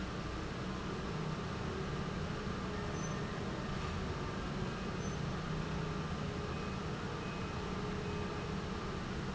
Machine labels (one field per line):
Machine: pump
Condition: normal